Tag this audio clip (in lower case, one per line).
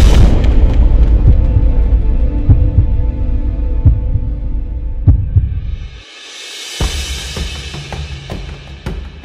music